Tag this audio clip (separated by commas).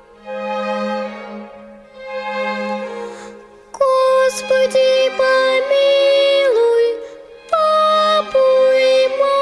Music